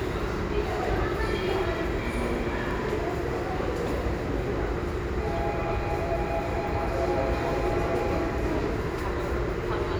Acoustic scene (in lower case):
subway station